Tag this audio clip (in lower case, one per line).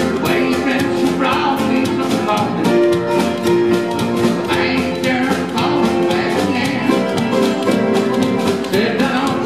music